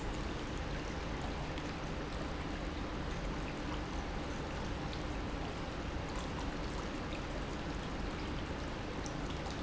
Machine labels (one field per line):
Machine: pump